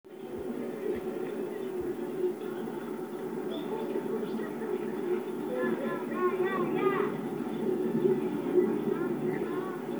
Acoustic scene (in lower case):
park